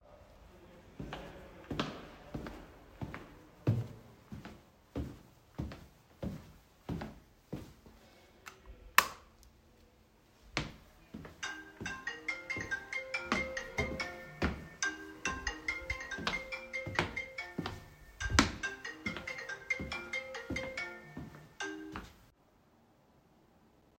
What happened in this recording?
I walked towards the lightswitch, flipped it on and then my phone started ringing whilst I was walking around it without taking the call.